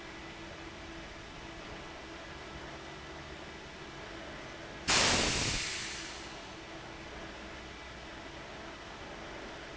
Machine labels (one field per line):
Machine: fan